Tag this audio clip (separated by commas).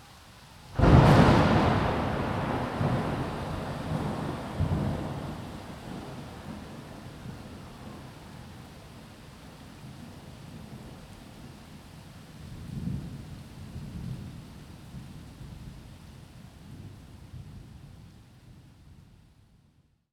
Thunderstorm, Water, Rain, Thunder